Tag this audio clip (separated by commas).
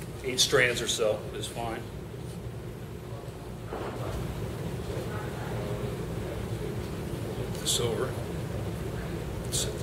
Speech